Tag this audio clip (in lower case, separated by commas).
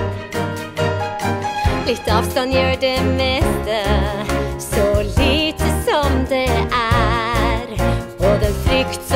music